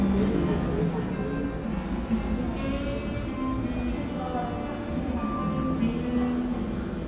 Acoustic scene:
cafe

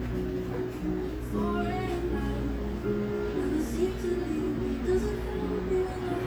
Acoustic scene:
cafe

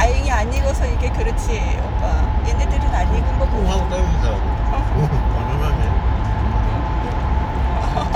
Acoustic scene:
car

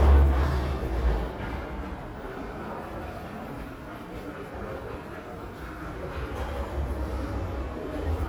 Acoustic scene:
crowded indoor space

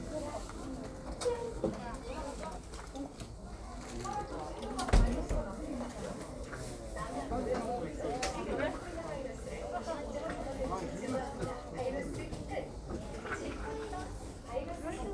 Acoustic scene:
crowded indoor space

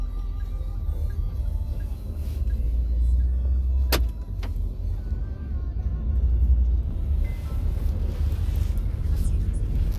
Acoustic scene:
car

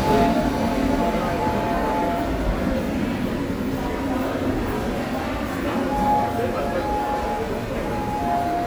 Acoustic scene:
subway station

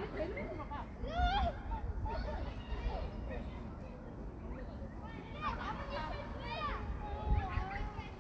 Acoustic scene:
park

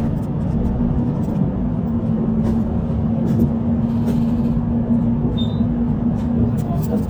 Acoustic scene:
bus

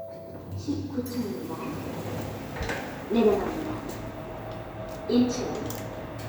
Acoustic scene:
elevator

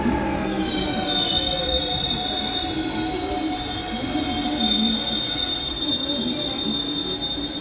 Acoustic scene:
subway station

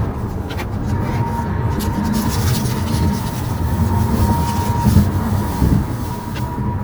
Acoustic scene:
car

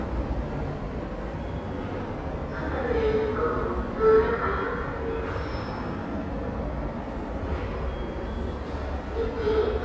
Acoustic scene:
subway station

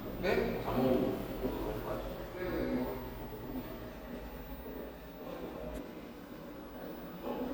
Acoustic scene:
elevator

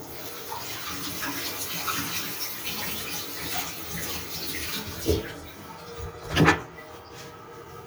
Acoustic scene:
restroom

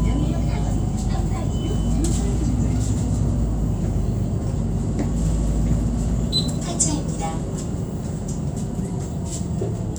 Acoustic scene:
bus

